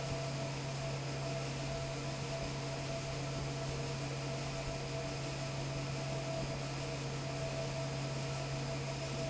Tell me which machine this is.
fan